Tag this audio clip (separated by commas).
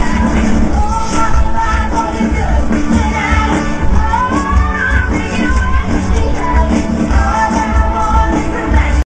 Music, Rhythm and blues